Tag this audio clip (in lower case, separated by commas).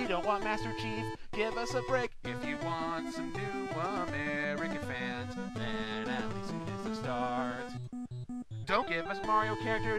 funny music, music